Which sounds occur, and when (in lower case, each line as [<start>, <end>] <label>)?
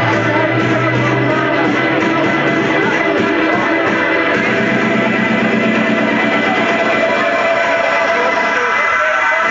[0.00, 1.56] man speaking
[0.00, 9.50] music
[2.38, 3.14] human voice
[7.74, 9.50] man speaking